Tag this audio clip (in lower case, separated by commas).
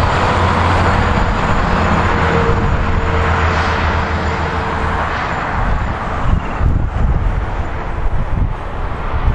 vehicle